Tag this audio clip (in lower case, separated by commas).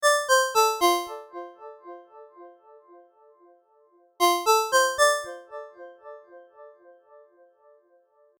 alarm, ringtone, telephone